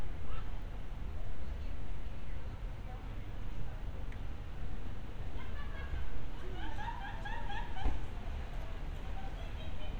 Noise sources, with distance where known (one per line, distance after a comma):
person or small group talking, far